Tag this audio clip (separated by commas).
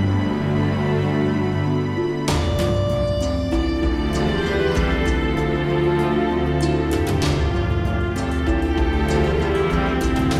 Music, Sad music